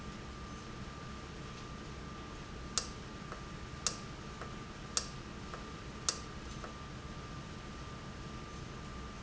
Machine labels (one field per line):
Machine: valve